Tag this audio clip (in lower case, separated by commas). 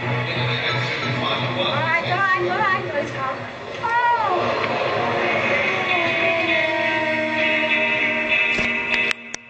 music, speech